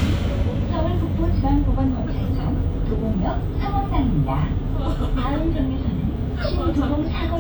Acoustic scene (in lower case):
bus